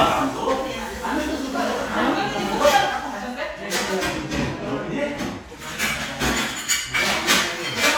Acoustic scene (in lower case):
crowded indoor space